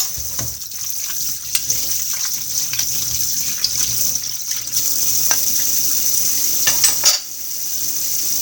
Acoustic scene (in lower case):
kitchen